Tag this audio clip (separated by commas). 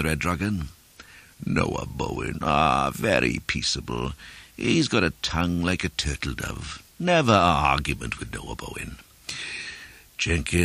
Speech, monologue